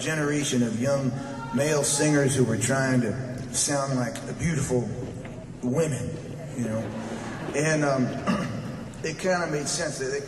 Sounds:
man speaking, Speech, Narration

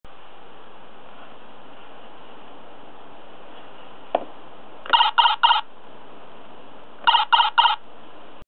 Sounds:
inside a small room

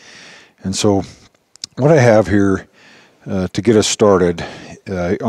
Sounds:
Speech

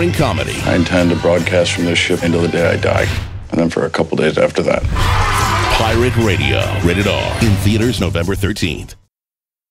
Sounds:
Speech, Music

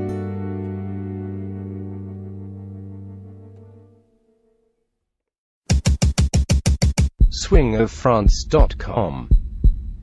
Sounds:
Musical instrument, Music, Accordion, Speech

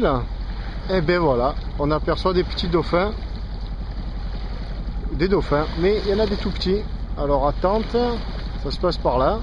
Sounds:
Wind noise (microphone), Wind

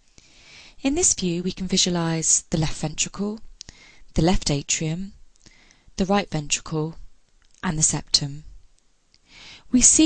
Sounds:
Speech

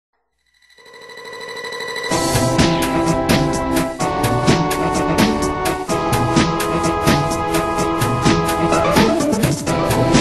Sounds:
Music

